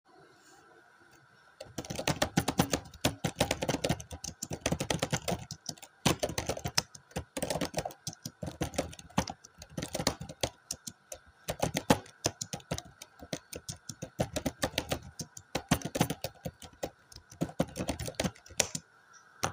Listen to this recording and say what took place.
I sat at my desk in the bedroom and started typing on my laptop. While typing, my phone rang continuously for about 30 seconds.